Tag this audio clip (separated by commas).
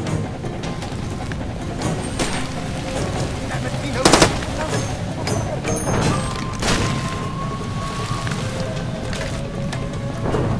Music